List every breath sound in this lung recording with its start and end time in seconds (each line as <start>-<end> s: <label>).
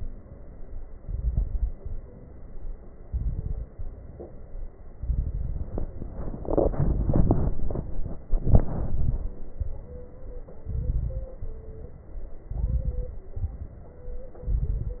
0.95-1.80 s: inhalation
0.95-1.80 s: crackles
3.04-3.68 s: inhalation
3.04-3.68 s: crackles
3.72-4.65 s: exhalation
3.72-4.65 s: crackles
4.98-5.83 s: inhalation
4.98-5.83 s: crackles
8.38-9.23 s: inhalation
8.38-9.23 s: crackles
9.60-10.45 s: exhalation
9.60-10.45 s: crackles
10.66-11.32 s: inhalation
10.66-11.32 s: crackles
11.40-12.33 s: exhalation
11.40-12.33 s: crackles
12.48-13.24 s: inhalation
12.48-13.24 s: crackles
13.36-14.14 s: exhalation
13.36-14.14 s: crackles
14.42-15.00 s: inhalation
14.42-15.00 s: crackles